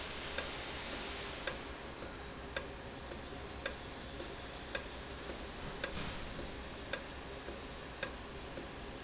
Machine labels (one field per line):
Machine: valve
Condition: normal